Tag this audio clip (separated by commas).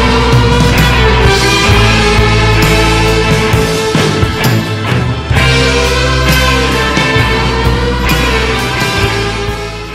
Psychedelic rock